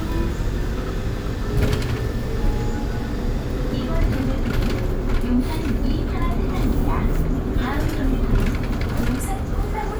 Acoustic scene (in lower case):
bus